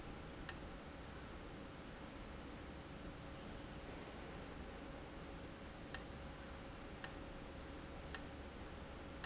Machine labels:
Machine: valve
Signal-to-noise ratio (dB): 6 dB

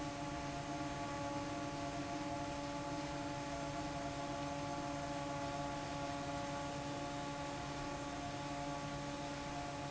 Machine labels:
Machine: fan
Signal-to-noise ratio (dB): 0 dB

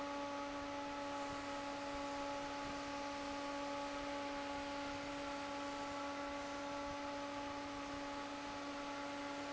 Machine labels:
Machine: fan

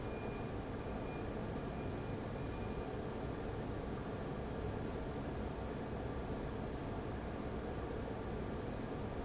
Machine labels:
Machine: fan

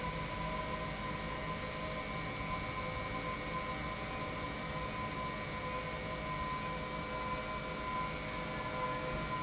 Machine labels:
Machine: pump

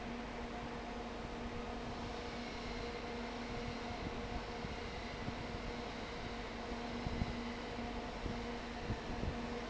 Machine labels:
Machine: fan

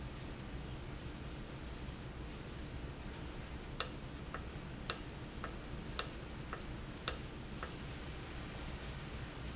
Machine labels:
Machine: valve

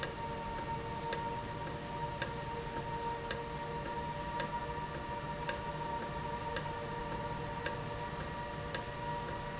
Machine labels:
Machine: valve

